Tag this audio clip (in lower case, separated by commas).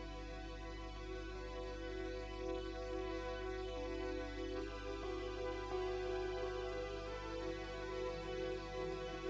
music